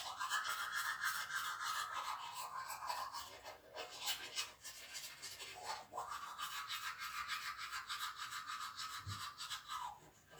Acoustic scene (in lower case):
restroom